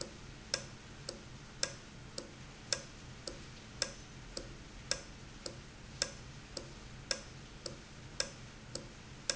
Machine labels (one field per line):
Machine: valve